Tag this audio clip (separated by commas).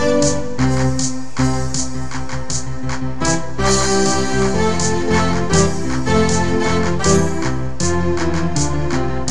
Music